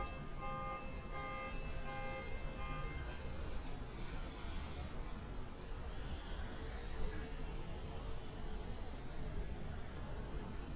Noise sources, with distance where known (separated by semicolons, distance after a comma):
car alarm, far